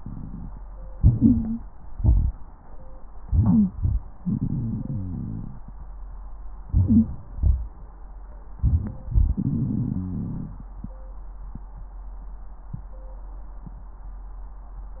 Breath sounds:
0.94-1.96 s: inhalation
0.94-1.96 s: wheeze
1.96-2.80 s: exhalation
3.21-4.06 s: inhalation
3.21-4.06 s: wheeze
4.16-5.62 s: exhalation
4.16-5.62 s: crackles
6.66-7.41 s: inhalation
6.66-7.41 s: wheeze
7.40-8.16 s: crackles
8.61-9.36 s: inhalation
8.61-9.36 s: wheeze
9.41-10.62 s: exhalation
9.41-10.62 s: crackles

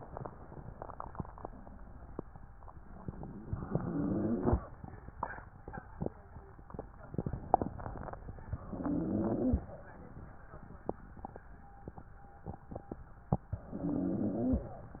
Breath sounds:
3.47-4.61 s: inhalation
3.47-4.61 s: rhonchi
8.67-9.72 s: inhalation
8.67-9.72 s: rhonchi
13.72-14.76 s: inhalation
13.72-14.76 s: rhonchi

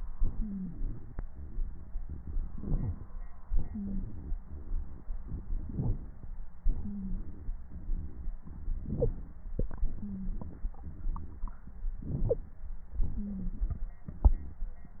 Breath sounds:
0.17-1.16 s: exhalation
0.38-0.76 s: wheeze
1.32-2.03 s: exhalation
2.50-3.23 s: inhalation
3.52-4.31 s: exhalation
3.72-4.04 s: wheeze
4.49-5.05 s: exhalation
5.67-6.32 s: inhalation
6.62-7.53 s: exhalation
6.83-7.20 s: wheeze
7.74-8.33 s: exhalation
8.86-9.42 s: inhalation
9.82-10.70 s: exhalation
10.00-10.32 s: wheeze
10.85-11.60 s: exhalation
11.97-12.41 s: inhalation
13.01-13.89 s: exhalation
13.14-13.51 s: wheeze

